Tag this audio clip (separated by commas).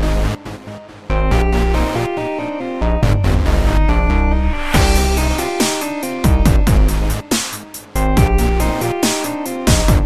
Dance music, Music